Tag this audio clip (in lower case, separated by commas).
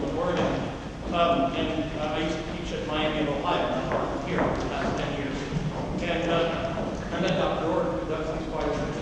speech